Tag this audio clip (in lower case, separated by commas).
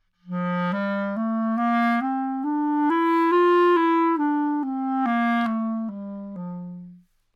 woodwind instrument, music, musical instrument